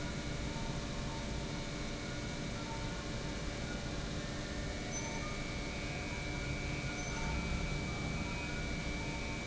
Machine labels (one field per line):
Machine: pump